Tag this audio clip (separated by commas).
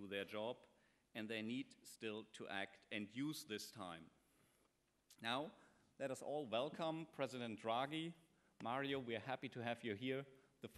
Speech, monologue, Male speech